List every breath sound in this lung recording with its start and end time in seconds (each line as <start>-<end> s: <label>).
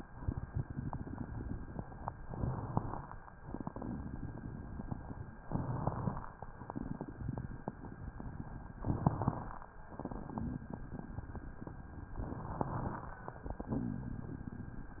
0.09-2.13 s: crackles
2.20-3.06 s: inhalation
3.44-5.35 s: crackles
5.45-6.30 s: inhalation
6.67-8.77 s: crackles
8.80-9.66 s: inhalation
9.94-10.62 s: exhalation
10.62-12.18 s: crackles
12.24-13.09 s: inhalation
13.47-15.00 s: crackles